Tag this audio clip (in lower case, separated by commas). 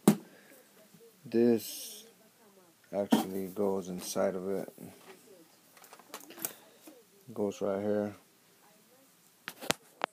tools, speech